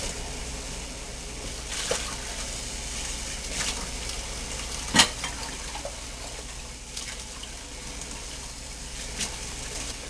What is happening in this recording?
Water runs continuously